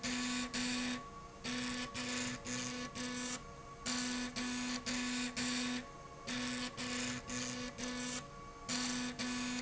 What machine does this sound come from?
slide rail